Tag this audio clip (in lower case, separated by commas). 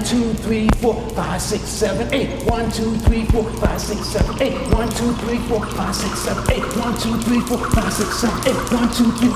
rope skipping